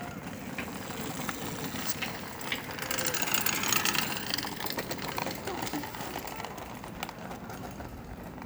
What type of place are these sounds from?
park